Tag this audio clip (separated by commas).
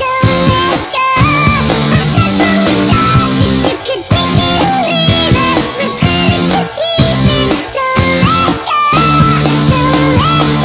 Music